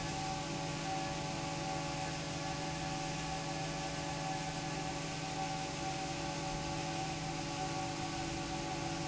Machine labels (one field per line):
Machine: fan